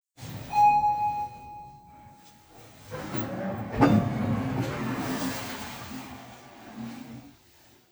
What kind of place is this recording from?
elevator